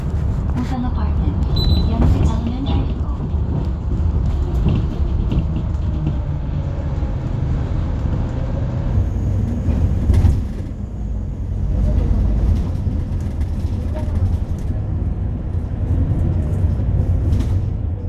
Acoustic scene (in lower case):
bus